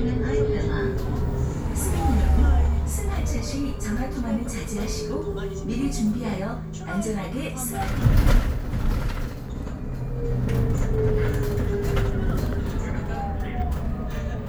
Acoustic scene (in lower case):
bus